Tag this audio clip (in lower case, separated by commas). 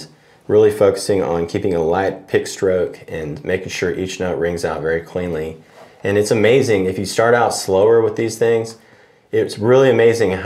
speech